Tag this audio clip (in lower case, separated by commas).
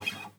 music, acoustic guitar, plucked string instrument, musical instrument, guitar